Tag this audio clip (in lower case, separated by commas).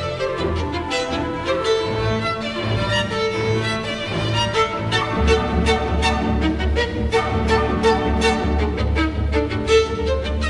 bowed string instrument, violin